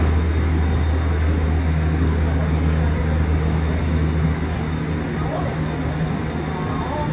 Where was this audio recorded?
on a subway train